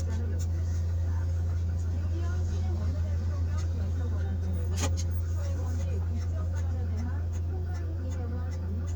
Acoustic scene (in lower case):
car